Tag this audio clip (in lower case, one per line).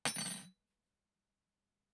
domestic sounds
silverware